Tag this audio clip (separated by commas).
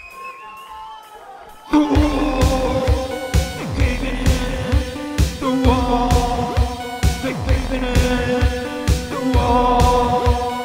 Music, Singing